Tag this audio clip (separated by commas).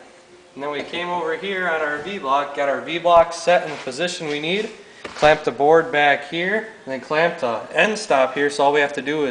Speech